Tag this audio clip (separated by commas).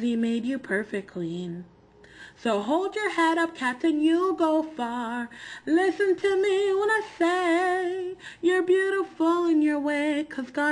Female singing, Speech